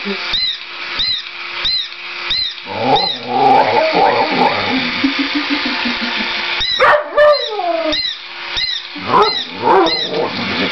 Something is squeaking and dogs are growling softly and barking